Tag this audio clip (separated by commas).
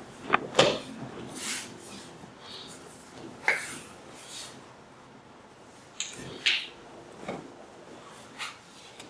inside a large room or hall